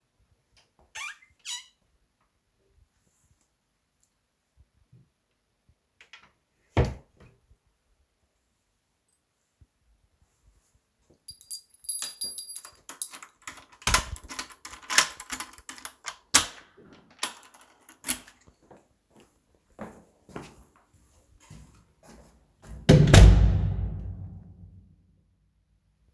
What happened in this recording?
I open the wardrobe, checked if I needed extra clothes, closed the wardrobe, grasped the key in the door, turned the key, took it out, opened the entrance door, left the apartment and shut the door